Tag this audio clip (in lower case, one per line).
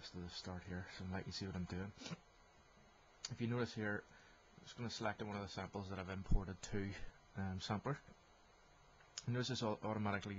speech